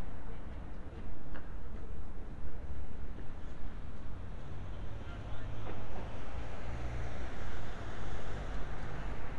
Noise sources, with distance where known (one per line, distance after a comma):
medium-sounding engine